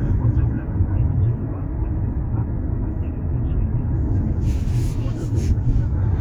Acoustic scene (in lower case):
car